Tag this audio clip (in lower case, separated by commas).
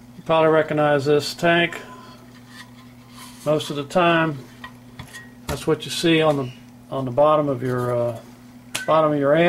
speech